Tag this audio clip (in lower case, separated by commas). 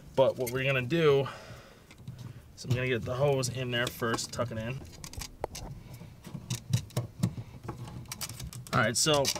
speech, inside a small room